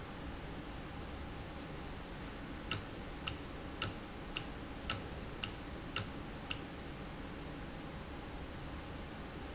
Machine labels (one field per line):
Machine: valve